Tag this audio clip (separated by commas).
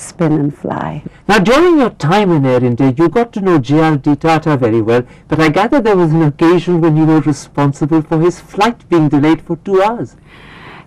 Conversation, Speech